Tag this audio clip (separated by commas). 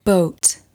Human voice, Speech, woman speaking